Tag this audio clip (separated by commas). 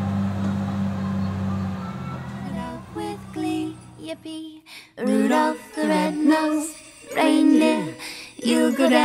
Truck, Emergency vehicle, Vehicle